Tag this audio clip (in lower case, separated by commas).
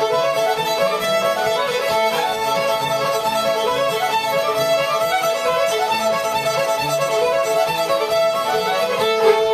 fiddle, music, musical instrument